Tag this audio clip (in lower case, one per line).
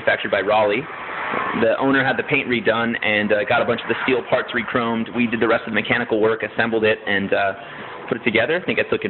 speech